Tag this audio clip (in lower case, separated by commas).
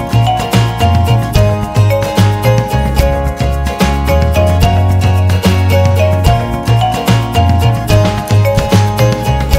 music